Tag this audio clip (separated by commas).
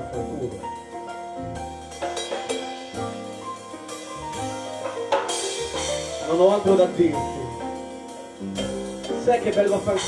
Musical instrument, Percussion, Music, Speech, Piano